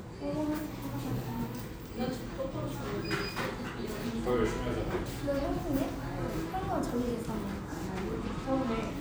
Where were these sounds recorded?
in a cafe